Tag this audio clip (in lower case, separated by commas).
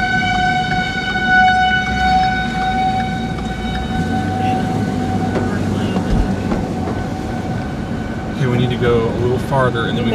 tornado roaring